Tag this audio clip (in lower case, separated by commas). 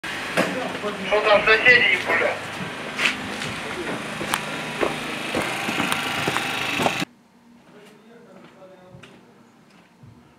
inside a large room or hall, speech